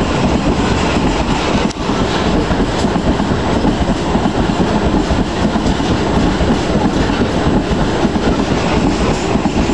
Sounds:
train wheels squealing

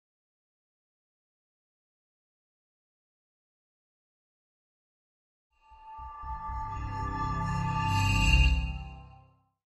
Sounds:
music

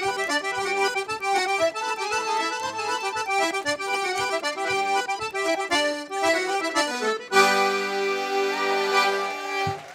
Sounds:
playing accordion

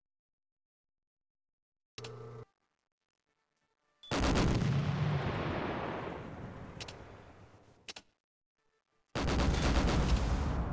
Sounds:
rattle

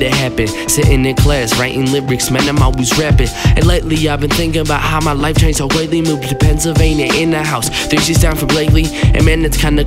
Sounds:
music

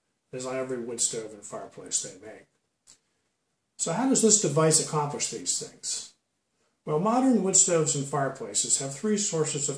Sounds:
speech

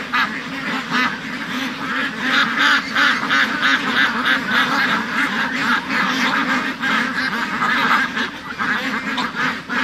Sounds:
duck quacking

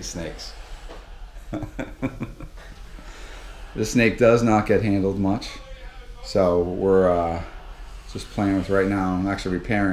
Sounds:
speech
inside a large room or hall
snake

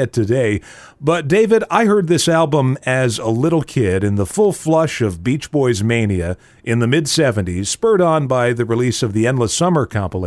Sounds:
speech

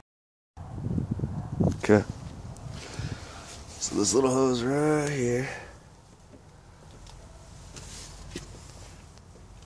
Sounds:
speech

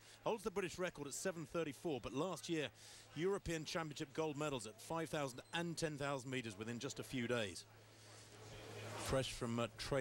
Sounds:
speech

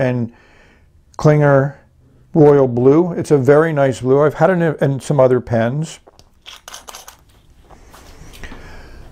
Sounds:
inside a small room
speech

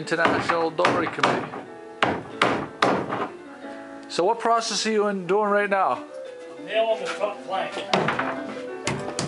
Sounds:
music
speech

